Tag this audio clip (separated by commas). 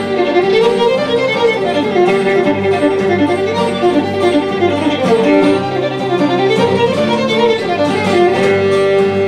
Music, fiddle, Musical instrument, Bowed string instrument